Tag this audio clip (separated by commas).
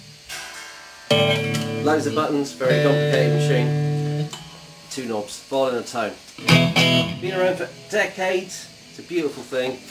Music, Speech